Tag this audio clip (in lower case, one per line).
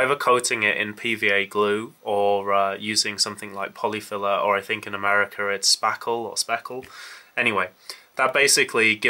speech